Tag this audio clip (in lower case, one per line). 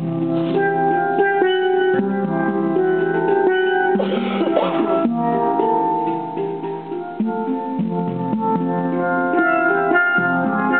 playing steelpan